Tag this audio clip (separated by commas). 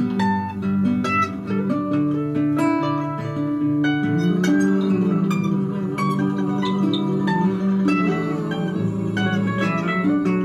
Music, Singing, Musical instrument